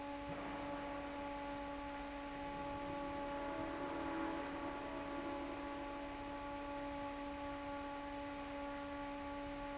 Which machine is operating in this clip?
fan